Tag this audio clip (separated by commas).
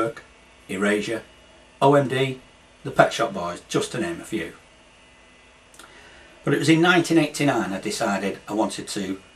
Speech